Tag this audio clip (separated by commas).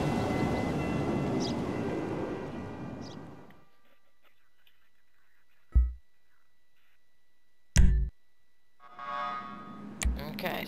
Music